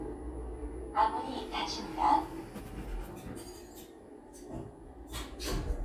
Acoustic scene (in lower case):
elevator